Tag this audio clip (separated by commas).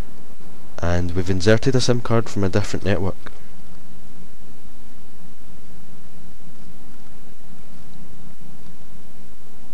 Speech